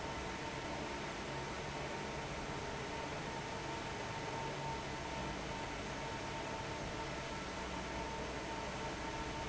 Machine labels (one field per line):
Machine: fan